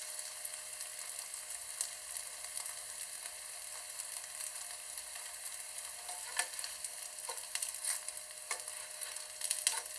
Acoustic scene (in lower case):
kitchen